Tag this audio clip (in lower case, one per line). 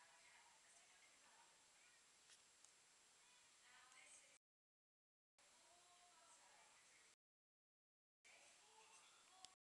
speech